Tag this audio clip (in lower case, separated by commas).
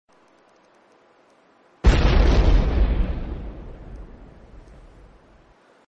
pop, explosion